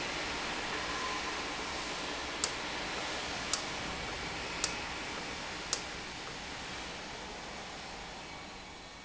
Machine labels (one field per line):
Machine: valve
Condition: normal